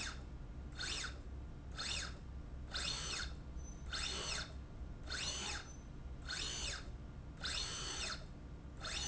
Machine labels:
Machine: slide rail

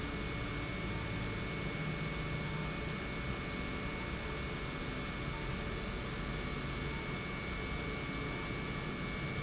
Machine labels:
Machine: pump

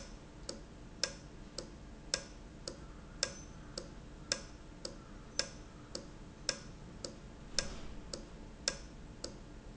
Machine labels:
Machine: valve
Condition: normal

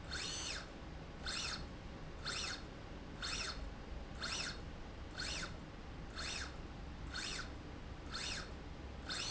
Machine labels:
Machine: slide rail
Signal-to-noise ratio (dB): 6 dB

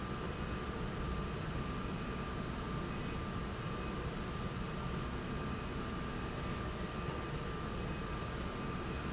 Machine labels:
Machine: slide rail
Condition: normal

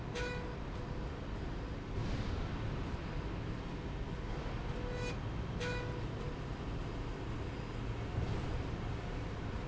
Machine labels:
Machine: slide rail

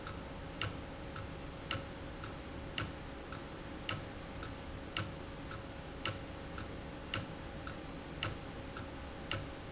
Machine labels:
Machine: valve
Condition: abnormal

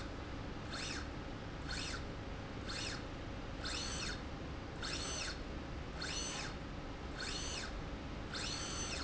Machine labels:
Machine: slide rail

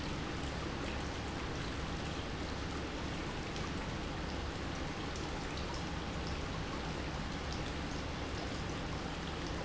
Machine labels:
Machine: pump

